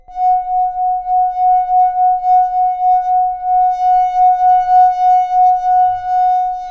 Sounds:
human voice
glass
singing

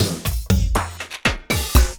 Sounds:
music
musical instrument
drum kit
percussion

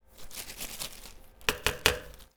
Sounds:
tap

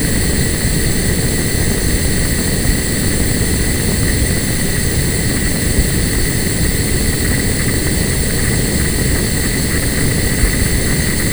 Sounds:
fire

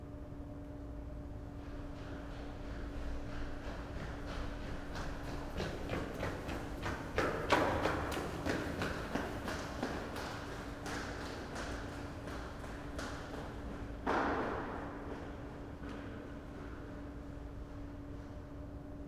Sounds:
run

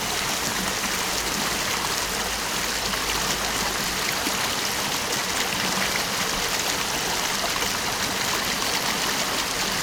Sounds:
stream
water

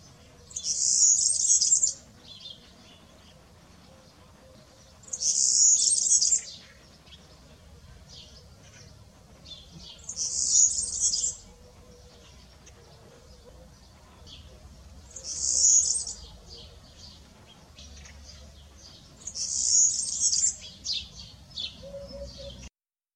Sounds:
bird
wild animals
bird vocalization
animal

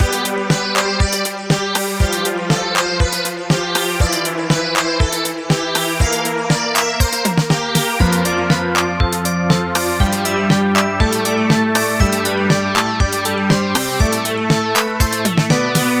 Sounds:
music
keyboard (musical)
organ
musical instrument

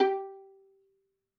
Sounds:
musical instrument
music
bowed string instrument

